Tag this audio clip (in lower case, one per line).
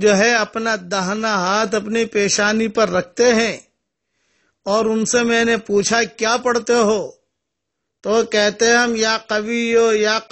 speech